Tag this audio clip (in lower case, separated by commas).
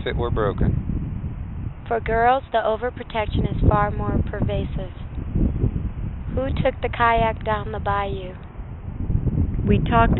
wind, wind noise (microphone)